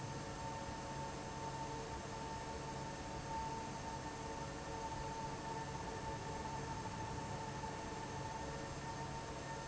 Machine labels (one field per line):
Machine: fan